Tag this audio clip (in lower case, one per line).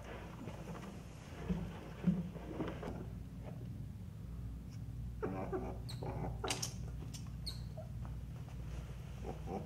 otter growling